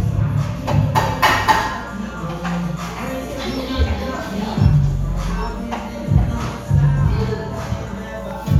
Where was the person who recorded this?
in a cafe